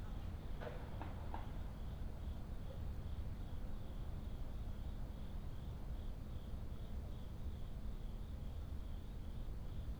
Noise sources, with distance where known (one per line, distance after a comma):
background noise